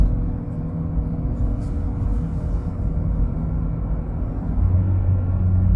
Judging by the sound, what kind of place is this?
car